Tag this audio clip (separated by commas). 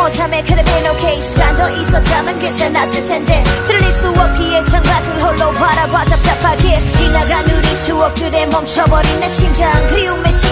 Music